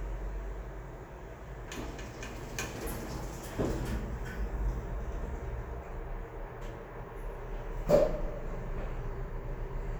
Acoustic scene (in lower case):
elevator